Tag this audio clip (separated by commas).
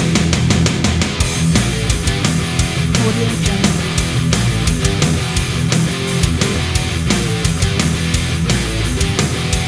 Music, Heavy metal